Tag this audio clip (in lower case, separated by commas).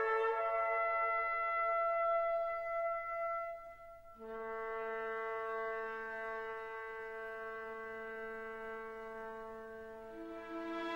music